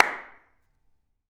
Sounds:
hands
clapping

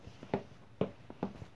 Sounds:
walk

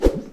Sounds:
swish

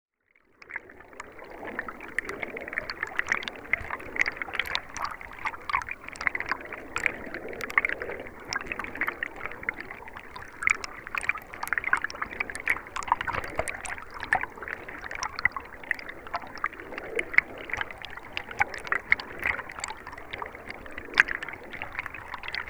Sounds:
water
stream

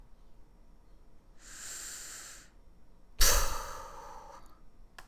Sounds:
respiratory sounds
breathing

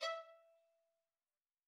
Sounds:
bowed string instrument
musical instrument
music

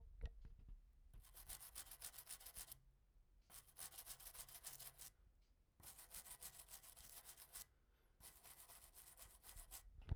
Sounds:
home sounds

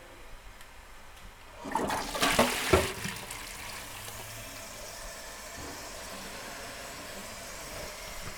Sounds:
home sounds
toilet flush
water

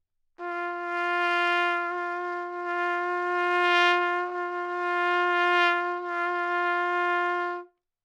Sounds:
trumpet
musical instrument
music
brass instrument

